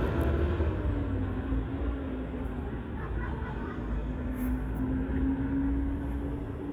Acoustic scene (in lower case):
street